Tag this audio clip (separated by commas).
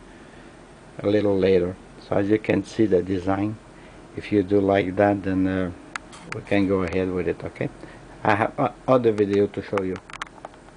Speech